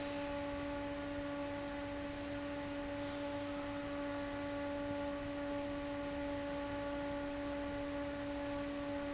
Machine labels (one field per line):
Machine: fan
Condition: abnormal